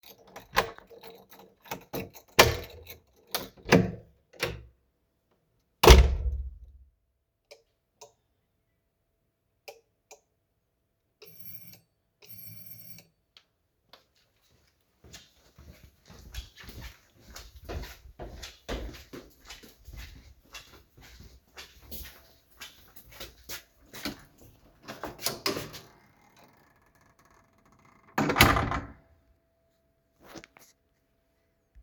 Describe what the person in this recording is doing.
I walked from outside and opened the lock with key and opened the door. I entered to room and turned light on and walked completly inside room.